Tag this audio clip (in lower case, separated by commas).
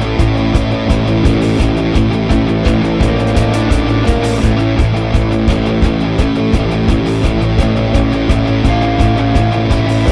music